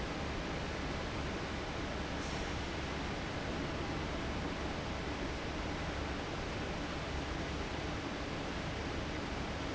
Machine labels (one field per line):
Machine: fan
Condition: abnormal